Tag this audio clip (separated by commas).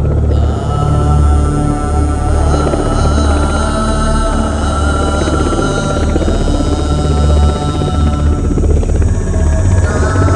Music